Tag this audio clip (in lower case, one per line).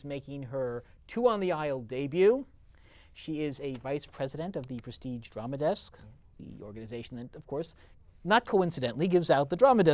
speech